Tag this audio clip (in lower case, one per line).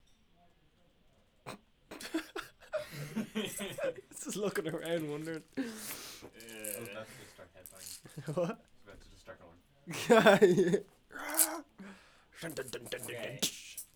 human voice
laughter